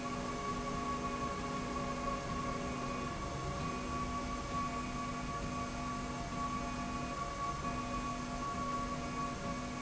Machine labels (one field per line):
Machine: slide rail